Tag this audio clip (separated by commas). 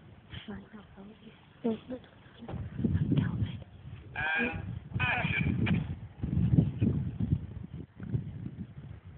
Speech